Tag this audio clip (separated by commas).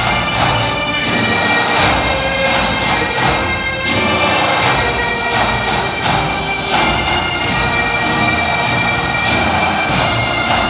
Musical instrument, Music, Violin